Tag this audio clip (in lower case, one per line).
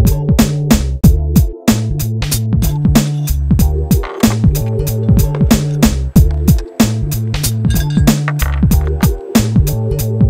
music